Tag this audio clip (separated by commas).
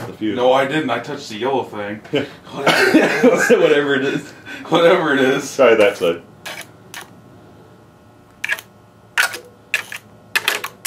inside a small room, Speech